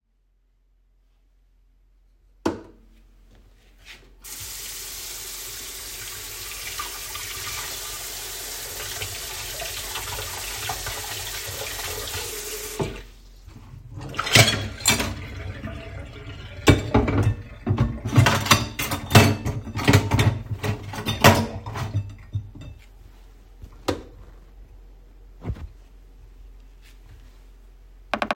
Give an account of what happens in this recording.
I turned on the lights in my kitchen and used the sink to wash my dishes and cutlery, I then turned off the lights